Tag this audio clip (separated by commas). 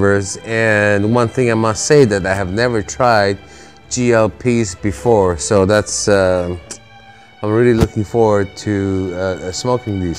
Speech, Music